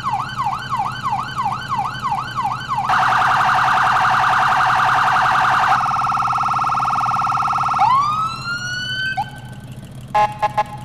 An emergency vehicle alarm is sounding